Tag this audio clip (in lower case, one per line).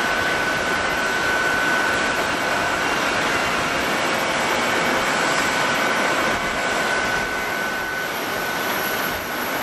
airplane